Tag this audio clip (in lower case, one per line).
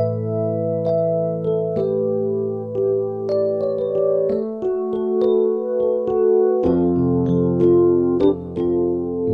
music
electric piano